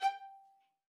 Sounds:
Bowed string instrument, Music, Musical instrument

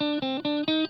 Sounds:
Musical instrument, Electric guitar, Guitar, Plucked string instrument, Music

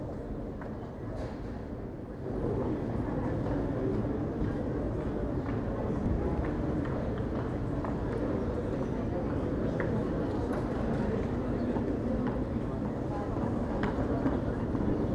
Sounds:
Crowd, Human group actions

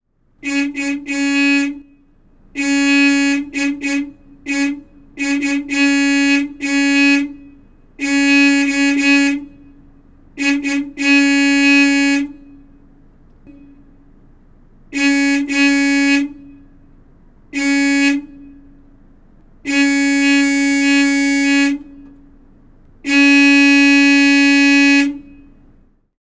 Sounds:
Alarm, Car, Motor vehicle (road), Vehicle, Vehicle horn

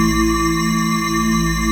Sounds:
Organ, Keyboard (musical), Music, Musical instrument

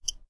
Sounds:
Tick, Clock, Mechanisms

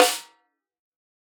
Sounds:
Musical instrument, Music, Drum, Percussion, Snare drum

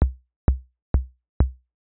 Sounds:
Drum, Percussion, Musical instrument, Music, Bass drum

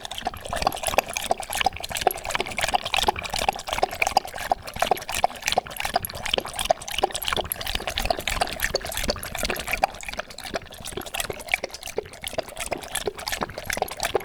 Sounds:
Dog, Animal, Domestic animals

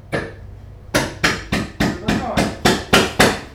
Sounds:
Hammer, Tools

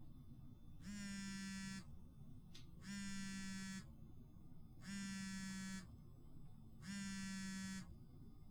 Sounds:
Alarm, Telephone

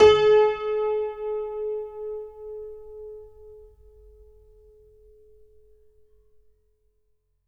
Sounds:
Musical instrument, Music, Keyboard (musical), Piano

